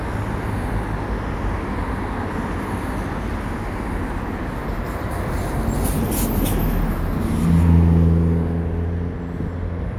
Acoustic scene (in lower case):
street